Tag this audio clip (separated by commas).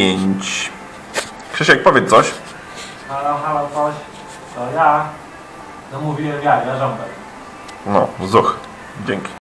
Speech